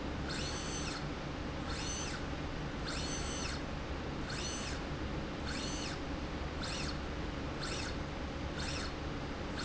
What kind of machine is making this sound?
slide rail